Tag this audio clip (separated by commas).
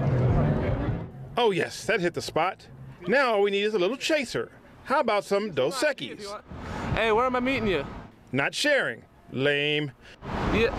Speech